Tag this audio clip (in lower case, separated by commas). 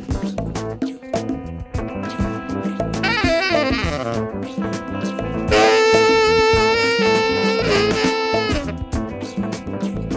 brass instrument, saxophone